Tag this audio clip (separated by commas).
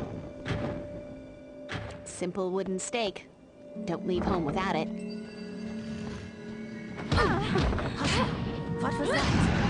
Music, Run, Speech